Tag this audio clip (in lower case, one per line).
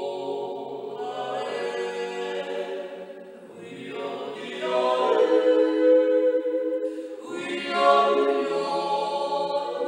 yodelling